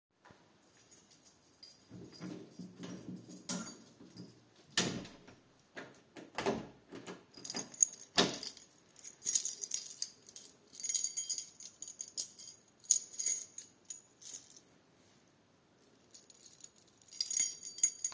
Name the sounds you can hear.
keys, door